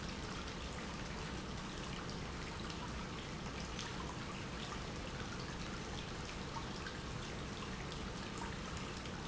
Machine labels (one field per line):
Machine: pump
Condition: normal